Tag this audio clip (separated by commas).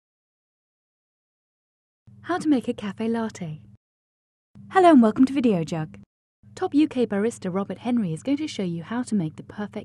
Speech